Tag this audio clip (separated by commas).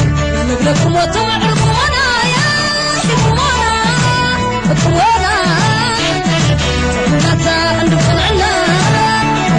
Exciting music, Music